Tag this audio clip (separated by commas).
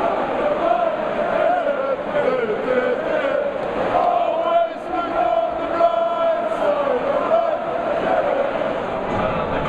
Speech